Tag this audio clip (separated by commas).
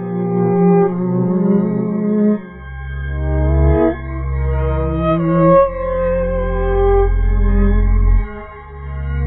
playing theremin